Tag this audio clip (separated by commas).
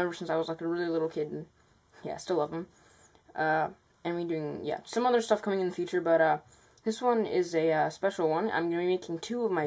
Speech